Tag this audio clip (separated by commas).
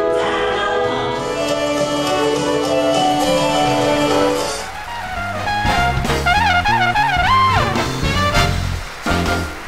Music